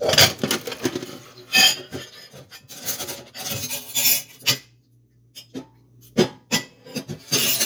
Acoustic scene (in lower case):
kitchen